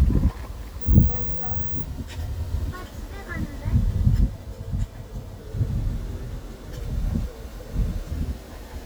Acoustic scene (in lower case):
park